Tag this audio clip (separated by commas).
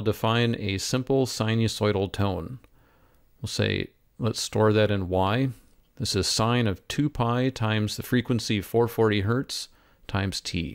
Speech